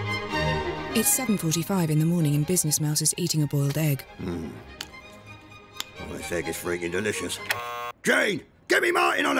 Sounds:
Music, Speech

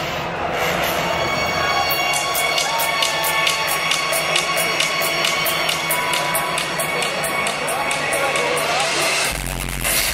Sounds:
Music, Electronic music, Techno, Speech

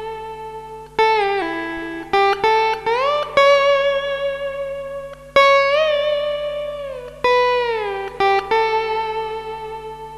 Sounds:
Music, Guitar

